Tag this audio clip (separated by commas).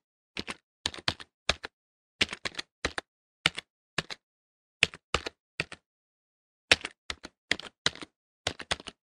Computer keyboard